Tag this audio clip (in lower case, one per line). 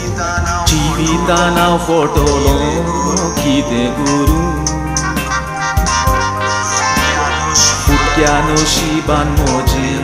male singing
music